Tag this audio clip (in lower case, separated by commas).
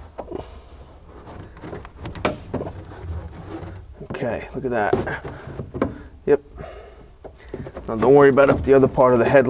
speech, inside a small room